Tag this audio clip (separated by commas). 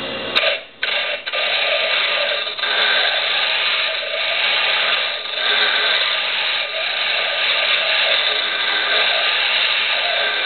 electric grinder grinding